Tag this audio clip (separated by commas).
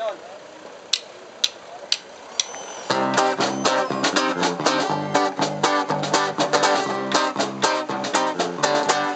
Music